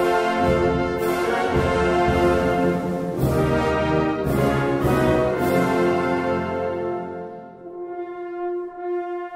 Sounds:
musical instrument
music
trombone

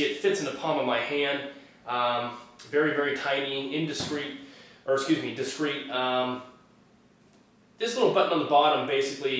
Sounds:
speech

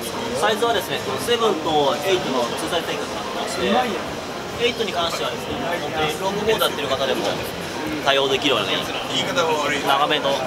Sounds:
speech

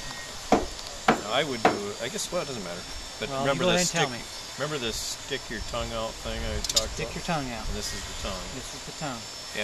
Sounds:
speech
tools
wood

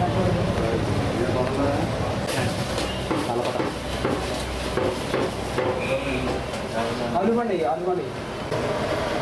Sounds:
speech

